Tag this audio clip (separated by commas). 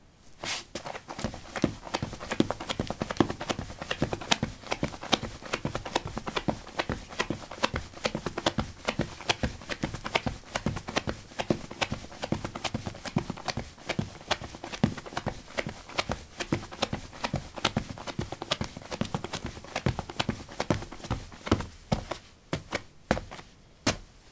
Run